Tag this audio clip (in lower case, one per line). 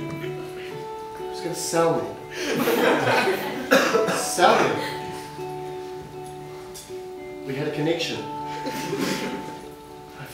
monologue
speech
music